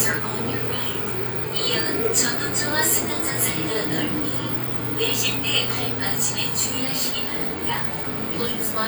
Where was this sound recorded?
on a subway train